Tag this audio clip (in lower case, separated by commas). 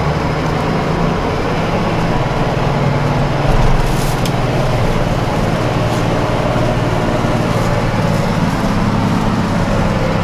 motor vehicle (road), vehicle